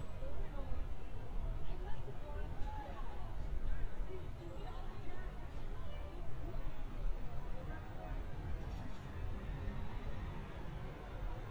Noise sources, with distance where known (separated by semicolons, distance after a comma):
person or small group talking, far